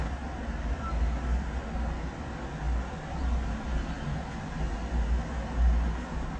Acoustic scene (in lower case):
residential area